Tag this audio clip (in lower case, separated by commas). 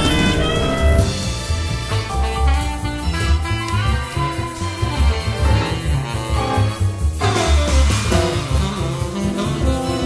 music